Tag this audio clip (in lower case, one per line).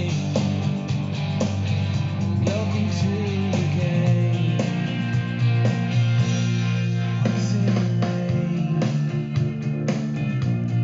music